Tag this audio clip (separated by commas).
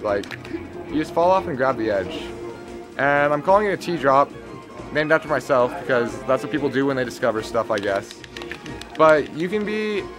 Speech, Music